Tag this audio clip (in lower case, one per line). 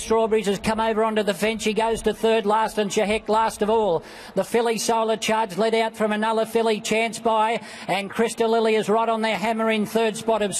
speech